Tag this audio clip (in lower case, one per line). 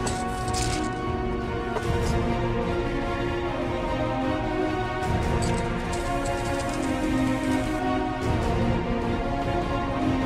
music
spray